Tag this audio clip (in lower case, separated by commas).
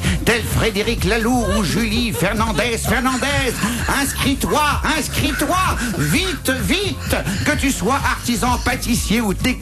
speech, music